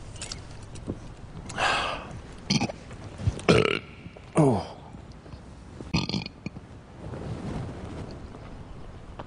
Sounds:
people burping

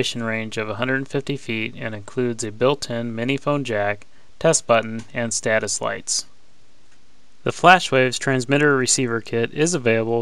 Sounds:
Speech

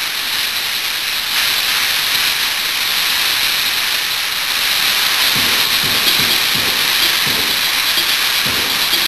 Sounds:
Music

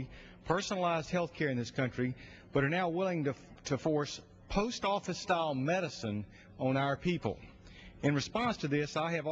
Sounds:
Speech

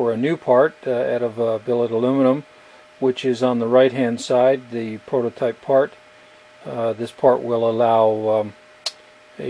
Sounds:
Speech

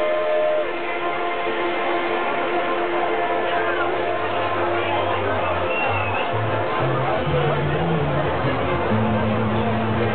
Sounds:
Crowd

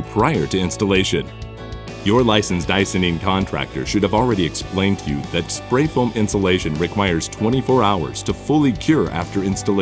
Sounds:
Speech, Music

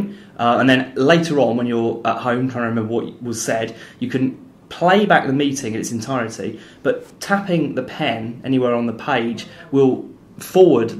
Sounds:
Speech

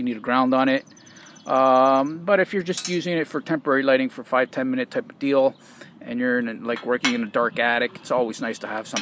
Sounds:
Speech

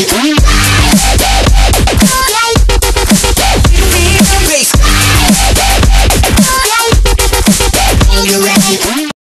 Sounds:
Music, Dubstep

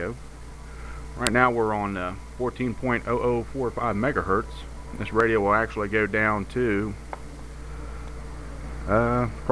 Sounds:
Speech

